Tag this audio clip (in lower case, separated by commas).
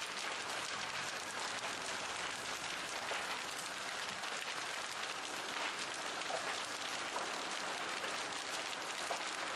outside, rural or natural, fire